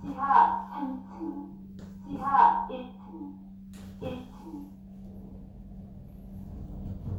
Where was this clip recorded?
in an elevator